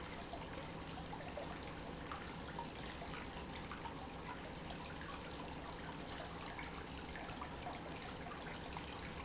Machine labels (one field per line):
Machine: pump